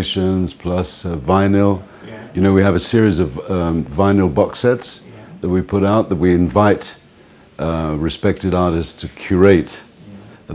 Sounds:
Speech

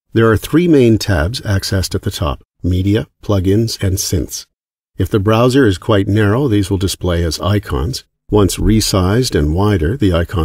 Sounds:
Speech

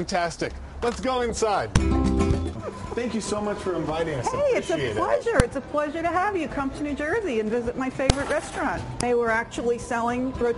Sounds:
Music, Speech

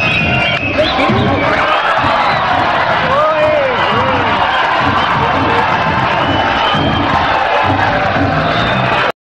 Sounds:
Speech, Music

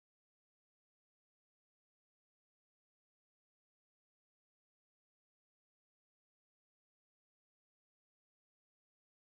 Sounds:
playing hockey

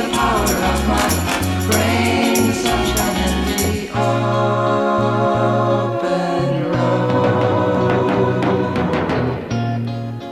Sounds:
Music

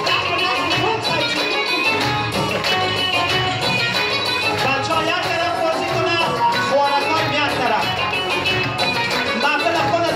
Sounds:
Music, Speech

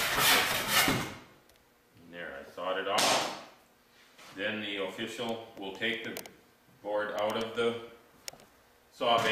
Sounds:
Speech, Wood, Tools

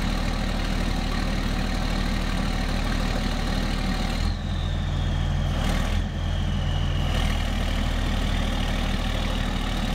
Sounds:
Truck, Vehicle

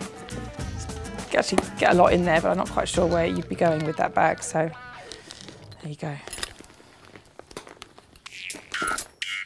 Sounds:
inside a small room, Music, Speech

